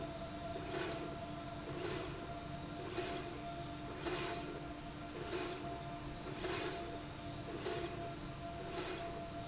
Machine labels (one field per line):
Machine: slide rail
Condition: normal